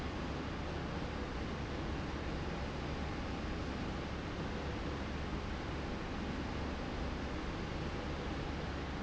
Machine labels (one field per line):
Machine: slide rail